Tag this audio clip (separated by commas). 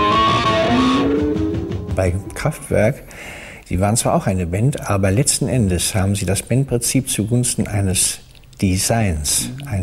Music, Speech